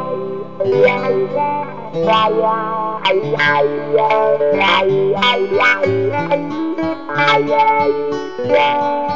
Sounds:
Guitar, Music, Musical instrument, Plucked string instrument

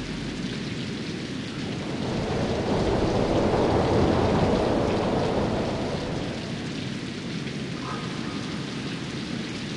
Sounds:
Thunder

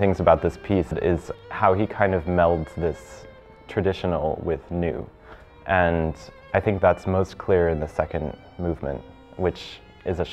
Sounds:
Music, Musical instrument, Violin, Speech

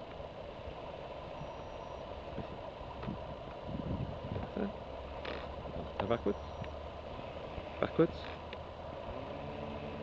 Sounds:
Speech

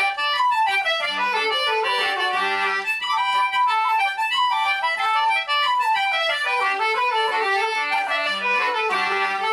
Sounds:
Music

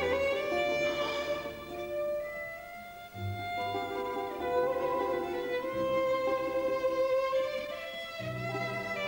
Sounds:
Musical instrument, fiddle, Music

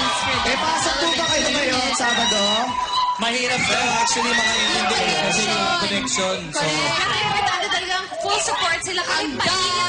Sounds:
Speech

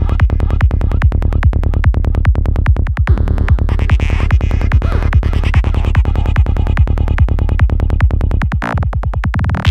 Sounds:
Music

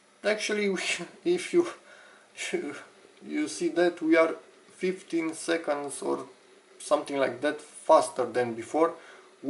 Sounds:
inside a small room, Speech

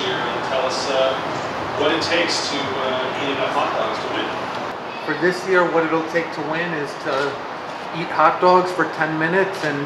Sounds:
Speech

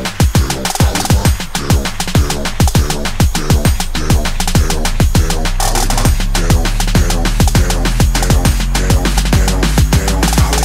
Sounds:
Drum and bass

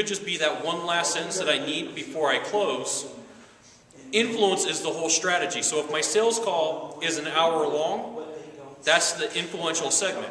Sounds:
Speech

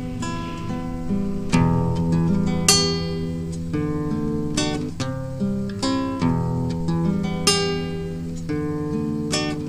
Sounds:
Musical instrument, Strum, Music, Plucked string instrument, Acoustic guitar, Guitar

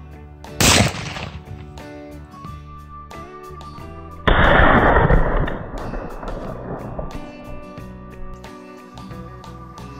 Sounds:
firing muskets

